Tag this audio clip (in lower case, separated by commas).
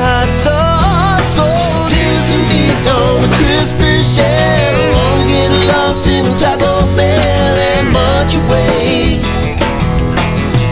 music